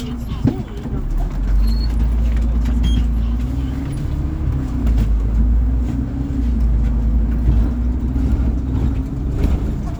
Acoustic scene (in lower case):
bus